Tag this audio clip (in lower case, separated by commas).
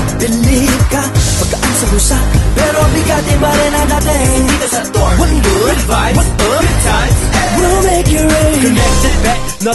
music